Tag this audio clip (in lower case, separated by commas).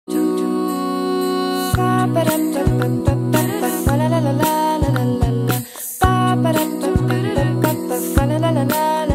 happy music, music